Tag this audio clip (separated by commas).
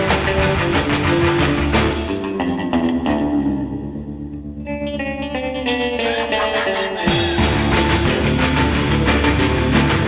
Music